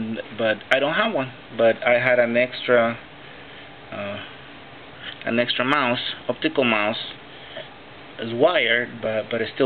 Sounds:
speech

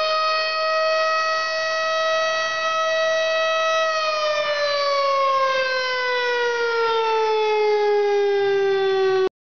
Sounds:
siren
civil defense siren

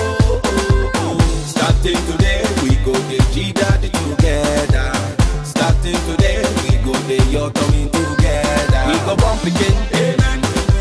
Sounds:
afrobeat

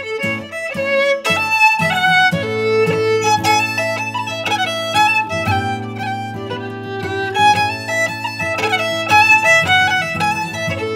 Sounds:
music
musical instrument
fiddle

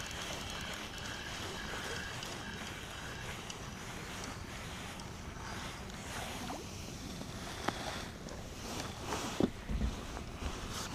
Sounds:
outside, rural or natural

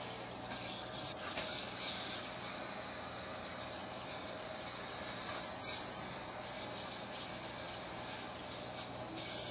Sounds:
silence
inside a small room

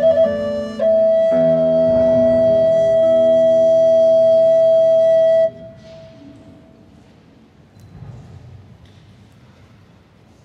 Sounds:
musical instrument
music
inside a large room or hall
guitar
flute

